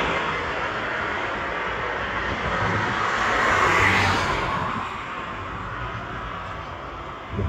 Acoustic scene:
street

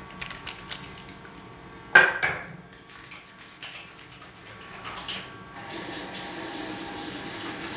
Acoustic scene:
restroom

